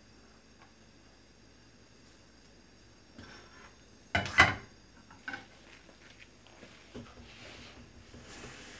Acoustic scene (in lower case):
kitchen